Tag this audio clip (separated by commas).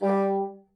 Music, Wind instrument, Musical instrument